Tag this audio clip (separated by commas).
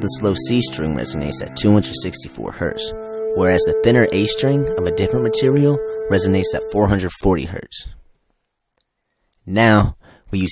Music, Speech